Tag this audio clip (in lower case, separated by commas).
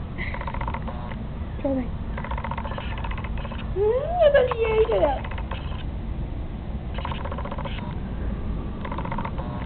speech